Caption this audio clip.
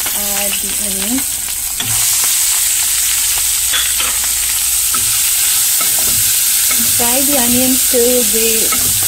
An adult female is speaking, sizzling and crackling are present, and metal clanking occurs